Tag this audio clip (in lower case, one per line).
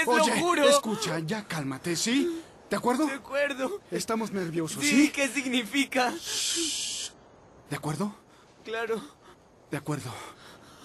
speech